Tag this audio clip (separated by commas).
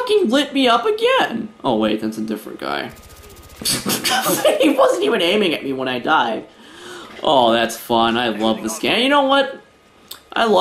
chortle, Speech